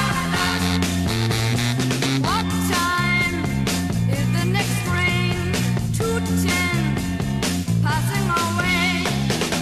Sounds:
Music, Psychedelic rock

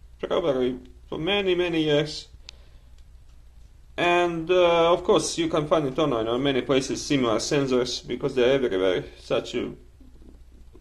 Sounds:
Speech

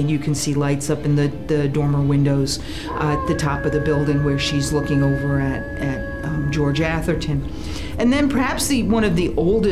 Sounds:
Speech

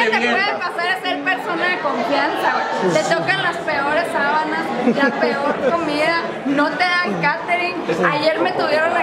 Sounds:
Speech

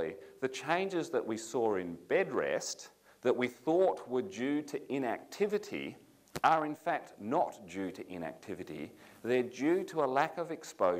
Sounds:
Speech

